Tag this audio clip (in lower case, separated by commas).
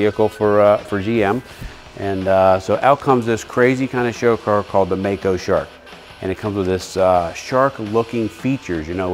speech, music